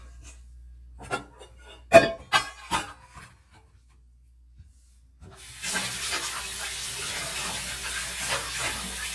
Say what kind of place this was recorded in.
kitchen